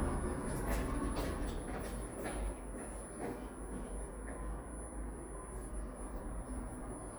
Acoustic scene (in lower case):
elevator